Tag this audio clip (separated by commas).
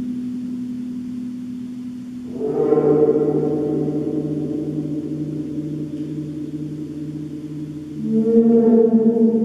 playing gong